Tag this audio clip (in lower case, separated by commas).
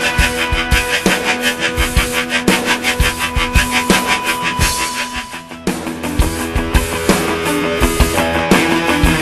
music